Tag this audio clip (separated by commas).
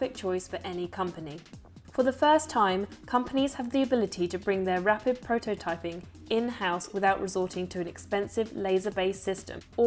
Speech, Music